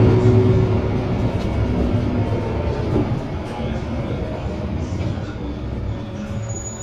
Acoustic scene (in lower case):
bus